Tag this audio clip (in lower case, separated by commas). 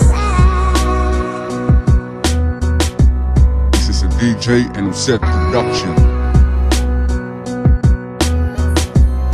speech, music